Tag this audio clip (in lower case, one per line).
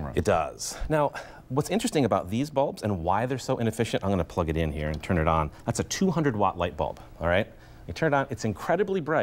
speech